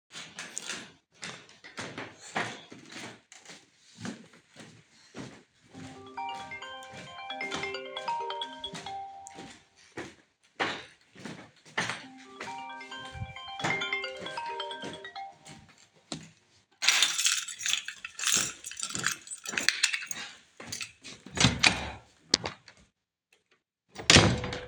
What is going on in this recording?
I was walking around in the apartment to leave, while my phone kept ringing. After I declined the call, I grabbed my keys, opened the door and left.